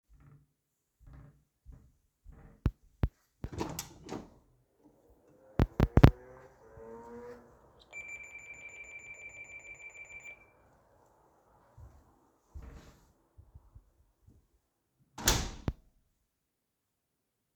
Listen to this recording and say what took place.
Walked to the door, opened it and went out. Then i rang the bell and after that i went in again.